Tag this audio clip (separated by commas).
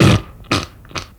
Fart